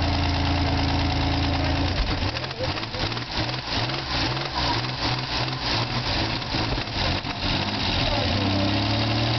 A vehicles' engine runs and revs up while a man speaks